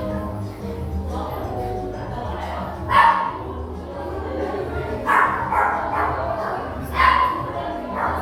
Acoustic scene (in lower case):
crowded indoor space